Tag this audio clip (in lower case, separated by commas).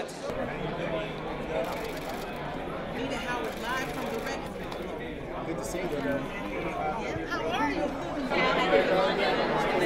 speech